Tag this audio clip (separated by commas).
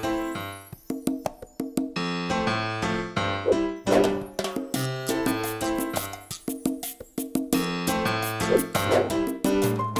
Music